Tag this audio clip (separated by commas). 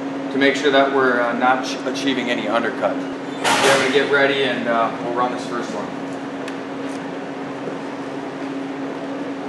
arc welding